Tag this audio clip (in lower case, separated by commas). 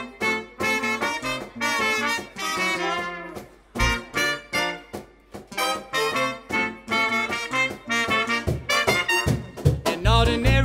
brass instrument, trumpet, trombone